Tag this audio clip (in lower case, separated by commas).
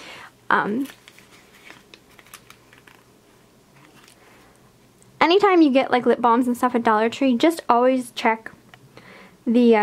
speech